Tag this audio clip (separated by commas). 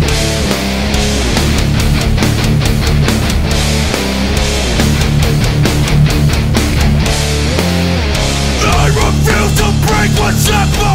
Music, Heavy metal